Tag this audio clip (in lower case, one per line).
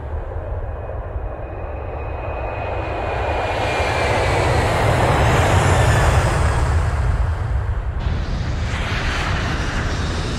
airplane